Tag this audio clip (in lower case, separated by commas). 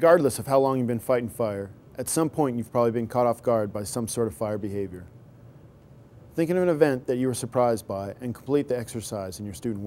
speech